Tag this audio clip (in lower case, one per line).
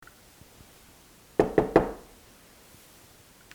home sounds
wood
knock
door